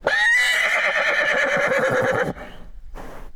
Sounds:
livestock
animal

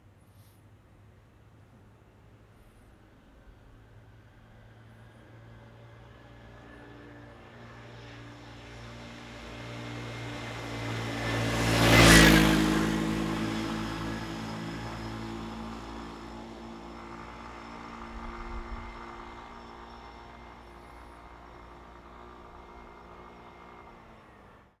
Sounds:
engine

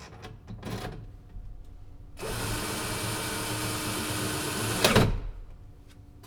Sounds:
tools

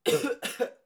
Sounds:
cough
respiratory sounds
human voice

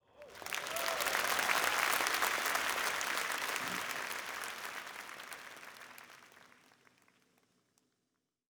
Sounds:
human group actions
applause

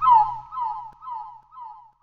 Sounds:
animal
bird
wild animals
bird song

